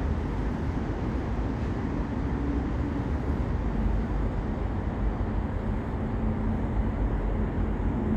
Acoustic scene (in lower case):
residential area